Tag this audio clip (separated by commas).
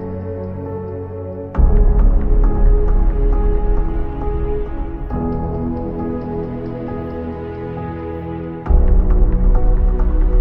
Music